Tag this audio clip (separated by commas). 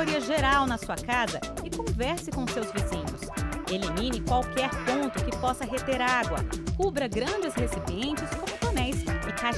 Speech, Music